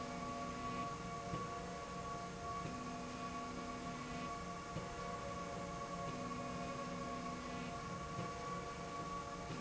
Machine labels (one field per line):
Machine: slide rail